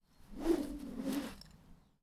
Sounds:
swoosh

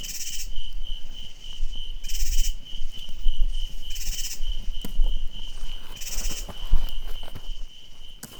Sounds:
insect, wild animals, animal

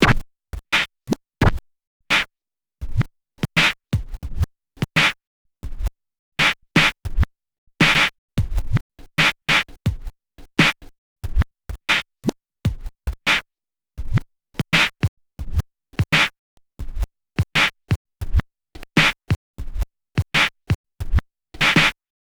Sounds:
musical instrument, music, scratching (performance technique)

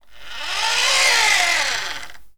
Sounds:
engine

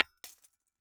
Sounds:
glass

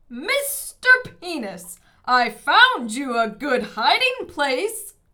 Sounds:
human voice, yell, shout

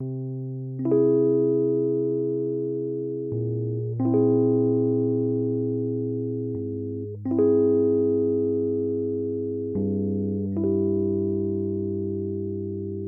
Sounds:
piano, music, musical instrument, keyboard (musical)

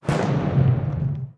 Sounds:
fireworks, explosion

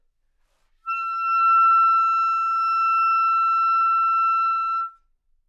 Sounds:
wind instrument, music, musical instrument

